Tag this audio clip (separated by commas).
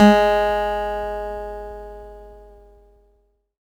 Music, Musical instrument, Guitar, Acoustic guitar, Plucked string instrument